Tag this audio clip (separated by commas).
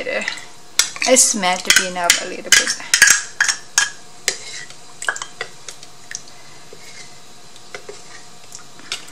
Stir